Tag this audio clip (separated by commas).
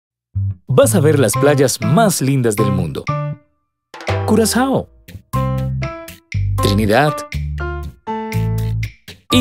Speech, Music